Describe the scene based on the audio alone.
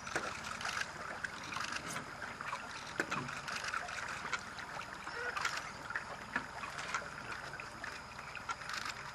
Water flows and cameras click